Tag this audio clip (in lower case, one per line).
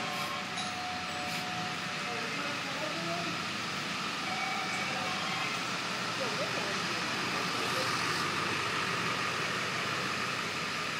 speech
car
vehicle